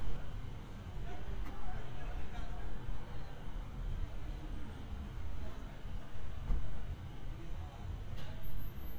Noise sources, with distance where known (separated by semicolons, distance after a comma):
person or small group talking, far